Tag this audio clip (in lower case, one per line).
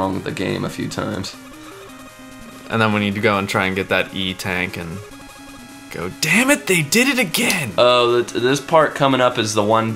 speech
music